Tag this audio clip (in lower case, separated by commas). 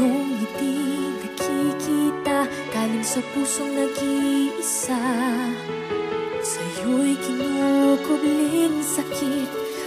music